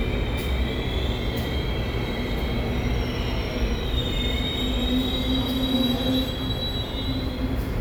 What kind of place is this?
subway station